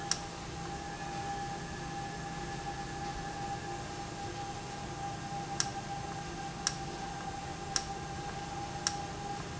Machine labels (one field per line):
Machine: valve